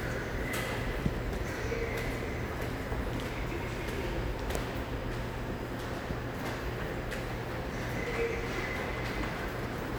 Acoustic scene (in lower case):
subway station